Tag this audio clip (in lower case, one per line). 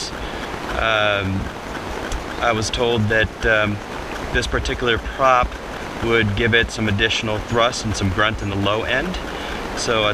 speech